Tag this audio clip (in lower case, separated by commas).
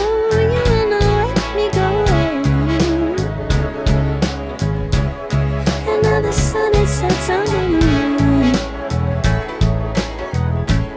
music, singing